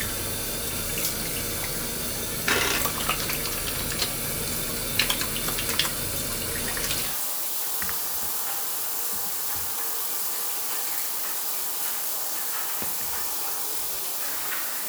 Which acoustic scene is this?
restroom